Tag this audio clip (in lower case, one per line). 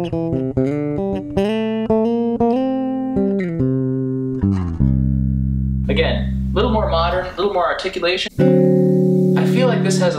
plucked string instrument
speech
musical instrument
inside a small room
music
bass guitar